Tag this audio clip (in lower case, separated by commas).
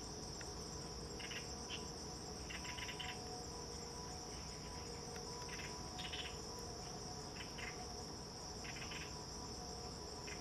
woodpecker pecking tree